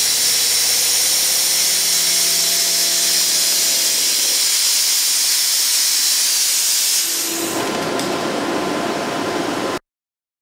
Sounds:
Tools

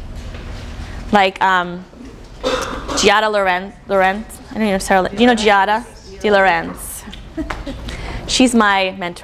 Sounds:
Speech

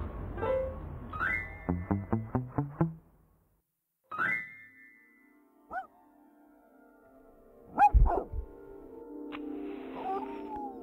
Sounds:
Music

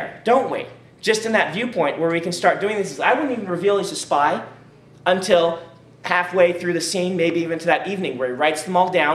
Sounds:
Speech

